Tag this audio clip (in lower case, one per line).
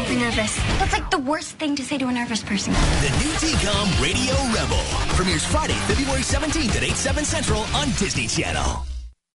speech
music